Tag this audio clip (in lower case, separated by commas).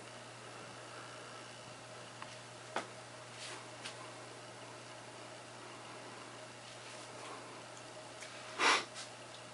speech